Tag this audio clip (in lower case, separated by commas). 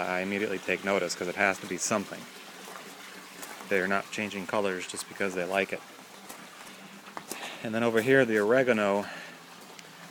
speech